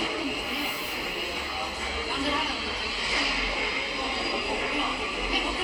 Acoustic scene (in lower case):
subway station